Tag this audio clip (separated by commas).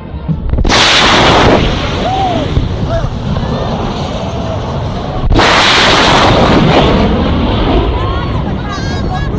airplane flyby